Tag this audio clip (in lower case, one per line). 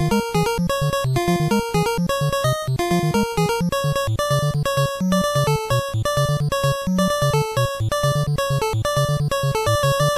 funny music
music